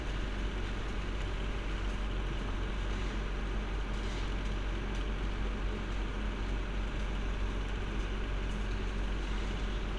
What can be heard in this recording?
engine of unclear size